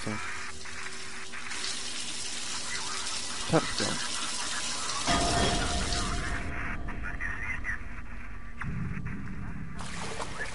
Water is pouring and draining into something while audio from a television is playing in the background